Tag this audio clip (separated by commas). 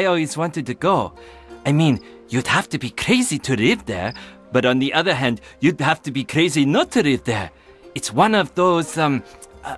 Speech